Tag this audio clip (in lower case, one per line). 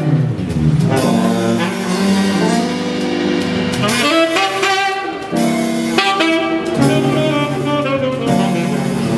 roll
music